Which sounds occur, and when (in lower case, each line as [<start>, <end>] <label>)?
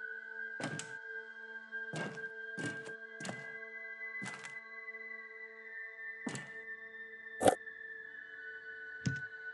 [0.00, 9.53] music
[0.00, 9.53] video game sound
[0.56, 0.73] walk
[0.73, 0.84] tick
[1.91, 2.15] walk
[2.54, 2.88] walk
[3.17, 3.46] walk
[4.15, 4.47] walk
[6.24, 6.52] walk
[7.37, 7.56] sound effect
[8.99, 9.18] generic impact sounds